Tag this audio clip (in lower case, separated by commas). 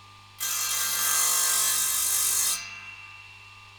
sawing, tools